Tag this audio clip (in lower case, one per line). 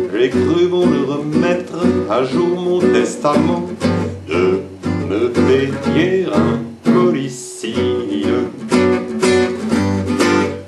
music